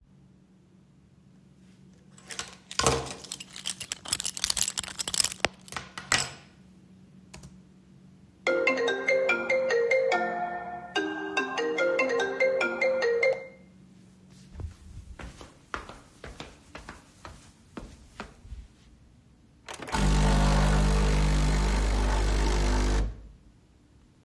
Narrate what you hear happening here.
First, I put my keychain down. Then my phone rang. Then I walked over to the coffee machine and switched it on.